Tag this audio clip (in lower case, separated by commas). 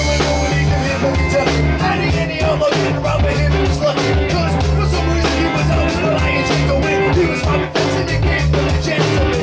music, pop music